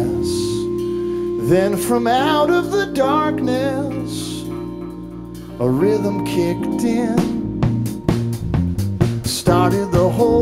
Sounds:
music
exciting music

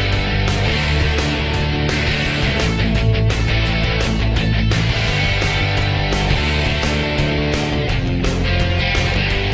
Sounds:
music

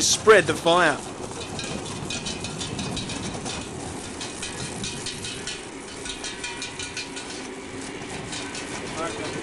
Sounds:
fire
wind

